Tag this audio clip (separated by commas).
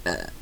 Burping